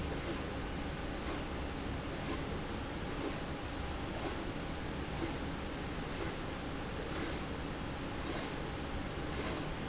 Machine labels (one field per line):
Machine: slide rail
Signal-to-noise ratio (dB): -6 dB